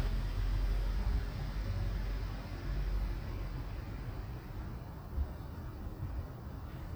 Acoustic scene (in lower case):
residential area